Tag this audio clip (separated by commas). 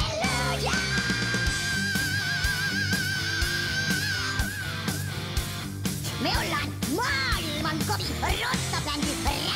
Speech, Music